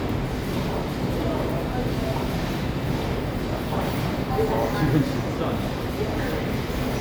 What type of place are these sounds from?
subway station